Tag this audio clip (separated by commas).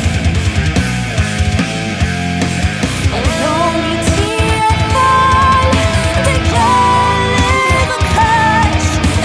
Music